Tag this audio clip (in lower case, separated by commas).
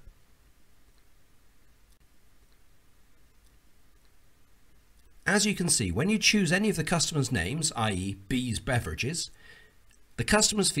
speech